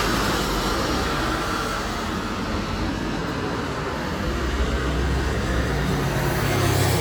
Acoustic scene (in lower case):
street